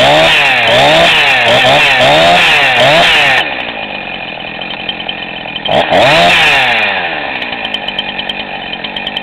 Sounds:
chainsaw, chainsawing trees

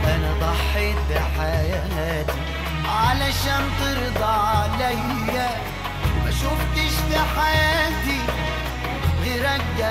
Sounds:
middle eastern music

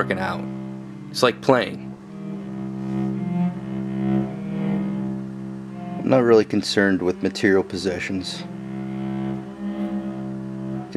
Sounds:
double bass

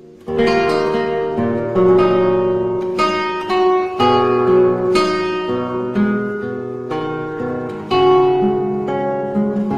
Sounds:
musical instrument, music, guitar, plucked string instrument, acoustic guitar

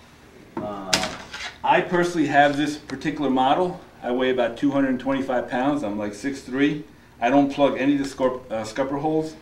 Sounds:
speech

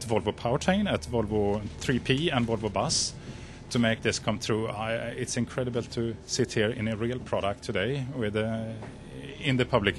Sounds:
speech

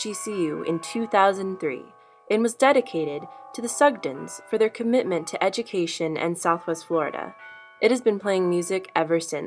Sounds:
speech

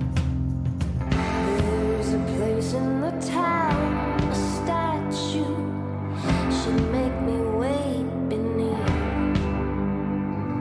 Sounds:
music

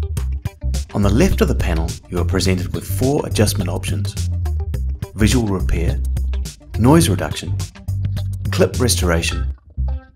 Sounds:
music, speech

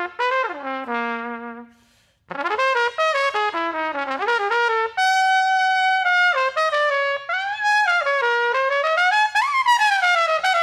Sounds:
playing trumpet, music, trumpet

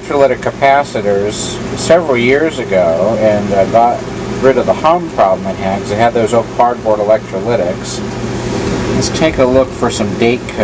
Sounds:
speech

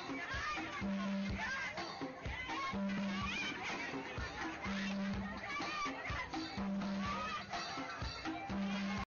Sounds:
speech, music

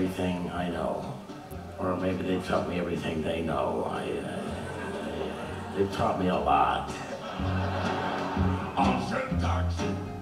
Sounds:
speech, music

